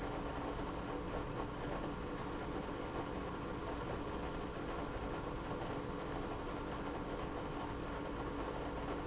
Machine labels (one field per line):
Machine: pump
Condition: abnormal